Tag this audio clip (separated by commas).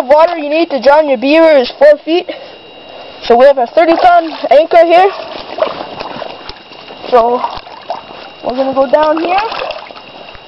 Speech